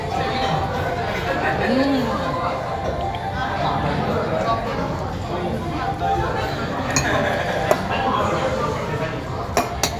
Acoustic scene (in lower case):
restaurant